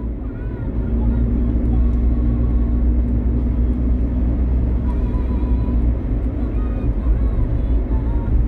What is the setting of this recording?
car